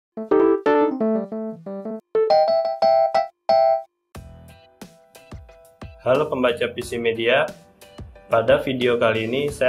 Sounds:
Music, Speech

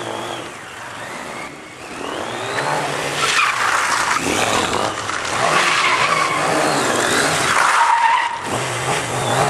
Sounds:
Vehicle, Motor vehicle (road), Skidding

